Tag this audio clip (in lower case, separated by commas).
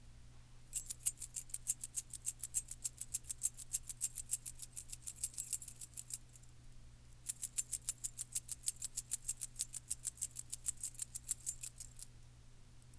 domestic sounds, keys jangling